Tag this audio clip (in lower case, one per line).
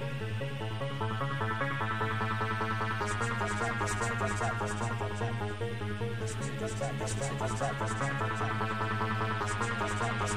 music